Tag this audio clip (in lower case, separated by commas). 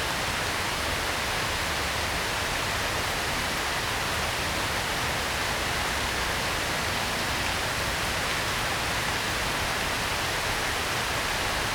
water, rain